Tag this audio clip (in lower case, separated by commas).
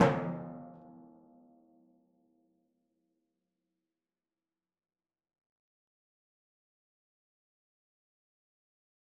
music, drum, percussion, musical instrument